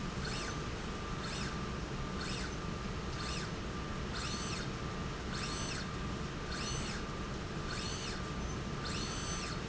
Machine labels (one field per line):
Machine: slide rail